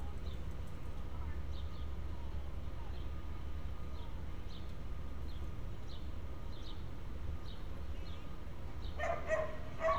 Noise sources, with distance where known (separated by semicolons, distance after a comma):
background noise